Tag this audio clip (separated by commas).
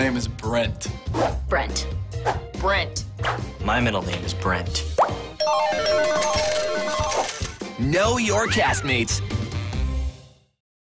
Speech, Music